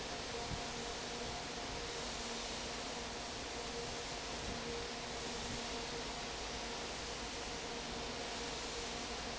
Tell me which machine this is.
fan